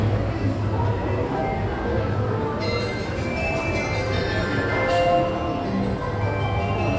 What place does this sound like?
subway station